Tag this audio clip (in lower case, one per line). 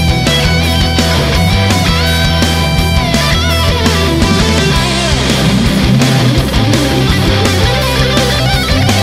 music